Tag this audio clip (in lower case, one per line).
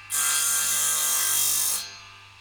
tools
sawing